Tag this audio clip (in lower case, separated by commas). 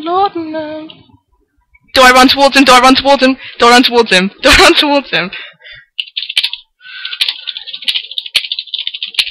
speech